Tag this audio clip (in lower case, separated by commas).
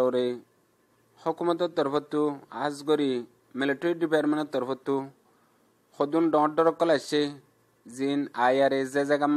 speech